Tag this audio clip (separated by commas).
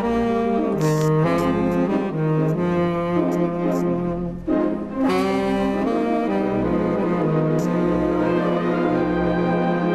Music